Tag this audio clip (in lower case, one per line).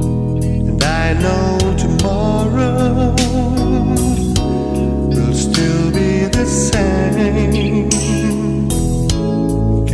soul music